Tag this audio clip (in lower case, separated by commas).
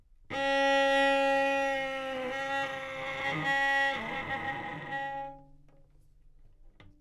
bowed string instrument, music, musical instrument